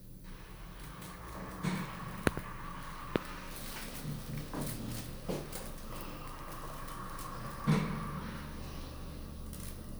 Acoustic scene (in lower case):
elevator